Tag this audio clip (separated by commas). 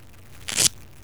Domestic sounds